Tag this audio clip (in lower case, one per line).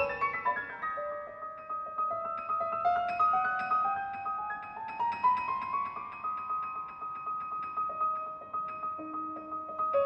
music
classical music
musical instrument
keyboard (musical)
piano